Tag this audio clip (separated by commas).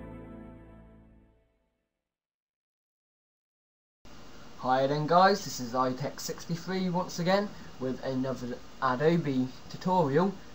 Speech, Music